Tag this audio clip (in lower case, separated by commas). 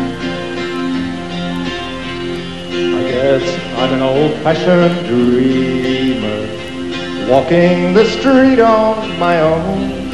music